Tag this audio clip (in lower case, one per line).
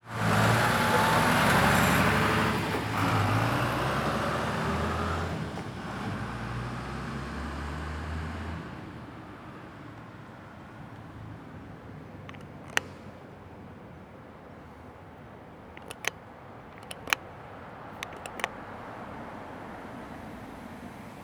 vehicle
motor vehicle (road)
roadway noise